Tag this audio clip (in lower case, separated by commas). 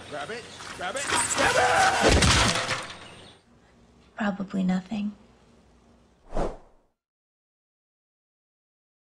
speech